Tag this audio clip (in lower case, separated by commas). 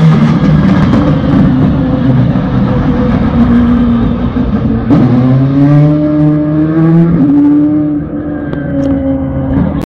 revving, vehicle, car passing by, car